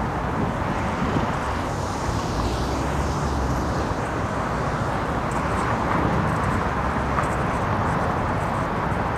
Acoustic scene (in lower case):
street